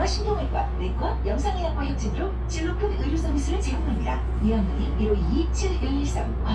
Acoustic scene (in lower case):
bus